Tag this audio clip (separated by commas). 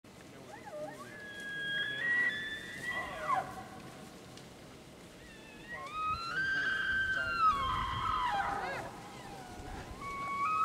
elk bugling